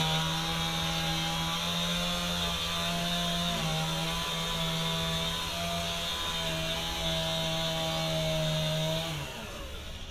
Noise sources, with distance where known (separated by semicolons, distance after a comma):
chainsaw, near